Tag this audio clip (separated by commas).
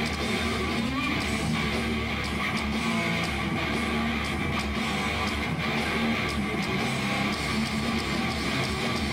Music